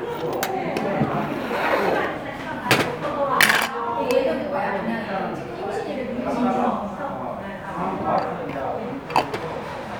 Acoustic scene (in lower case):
restaurant